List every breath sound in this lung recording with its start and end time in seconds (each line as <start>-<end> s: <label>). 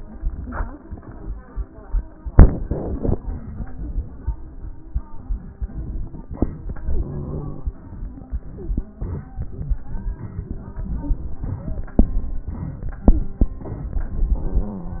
6.89-7.69 s: inhalation
6.89-7.69 s: crackles